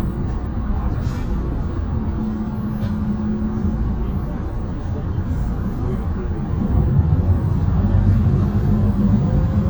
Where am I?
on a bus